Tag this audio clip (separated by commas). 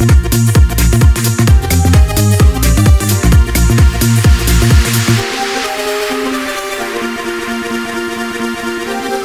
Music